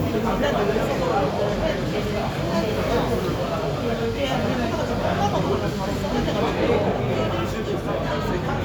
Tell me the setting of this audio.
crowded indoor space